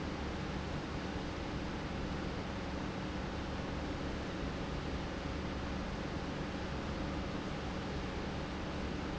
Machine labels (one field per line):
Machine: pump